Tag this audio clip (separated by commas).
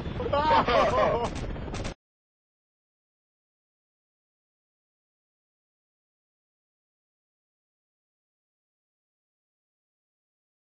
Speech